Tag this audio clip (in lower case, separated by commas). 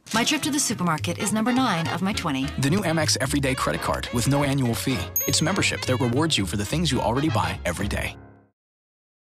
speech, music